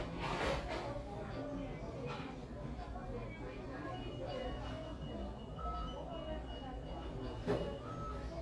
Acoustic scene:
crowded indoor space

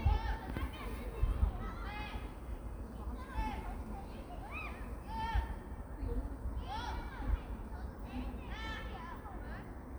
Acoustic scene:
park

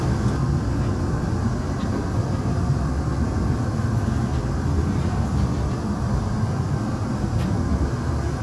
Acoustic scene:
subway train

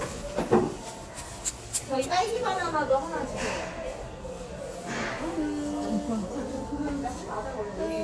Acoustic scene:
cafe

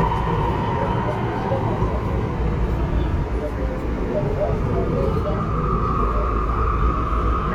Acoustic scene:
subway train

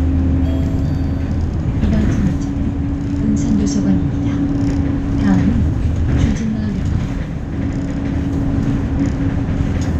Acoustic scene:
bus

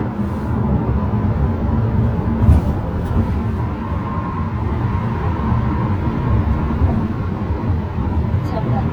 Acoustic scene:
car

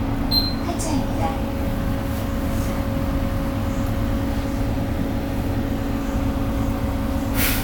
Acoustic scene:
bus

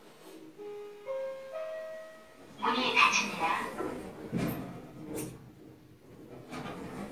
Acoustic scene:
elevator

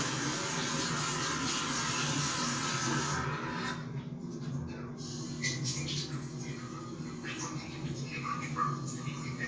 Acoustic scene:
restroom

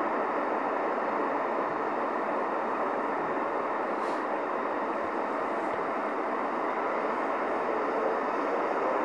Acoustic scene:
street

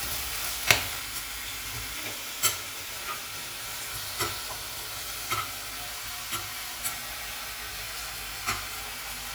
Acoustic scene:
kitchen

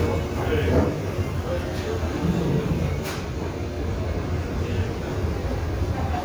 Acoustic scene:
restaurant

